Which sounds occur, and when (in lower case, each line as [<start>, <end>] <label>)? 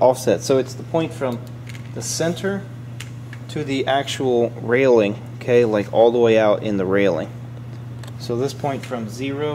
[0.01, 0.67] man speaking
[0.01, 9.54] mechanisms
[0.81, 1.35] man speaking
[1.61, 1.88] generic impact sounds
[1.89, 2.58] man speaking
[2.94, 3.10] generic impact sounds
[3.24, 3.38] generic impact sounds
[3.48, 5.16] man speaking
[5.40, 7.20] man speaking
[7.97, 8.15] generic impact sounds
[8.14, 9.54] man speaking